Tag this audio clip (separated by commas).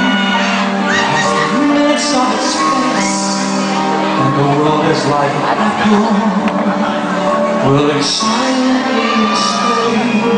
Tender music, Speech, Music